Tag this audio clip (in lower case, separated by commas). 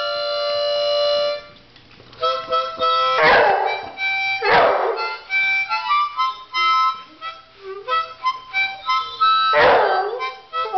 woodwind instrument, harmonica